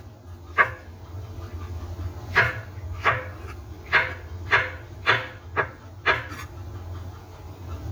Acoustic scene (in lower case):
kitchen